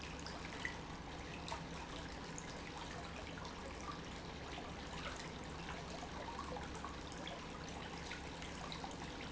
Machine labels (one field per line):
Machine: pump